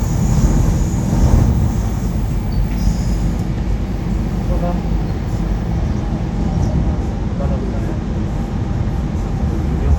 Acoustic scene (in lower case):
subway train